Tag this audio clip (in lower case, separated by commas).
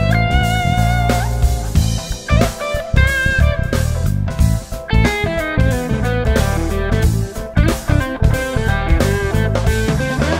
bass drum, cymbal, music, hi-hat, jazz, drum, slide guitar, drum kit, musical instrument, snare drum